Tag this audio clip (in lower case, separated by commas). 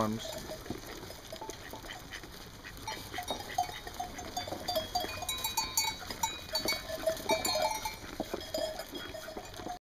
speech